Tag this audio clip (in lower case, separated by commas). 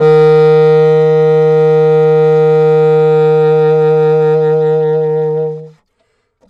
musical instrument, music, woodwind instrument